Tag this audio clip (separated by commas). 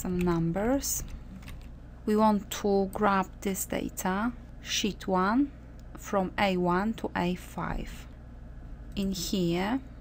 Speech